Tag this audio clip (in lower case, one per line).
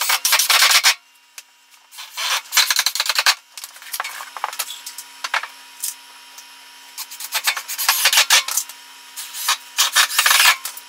tools